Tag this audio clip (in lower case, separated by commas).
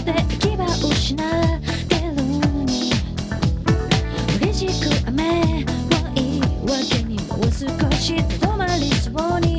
music